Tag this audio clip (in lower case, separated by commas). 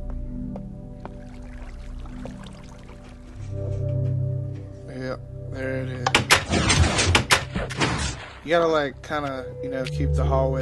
speech, music, door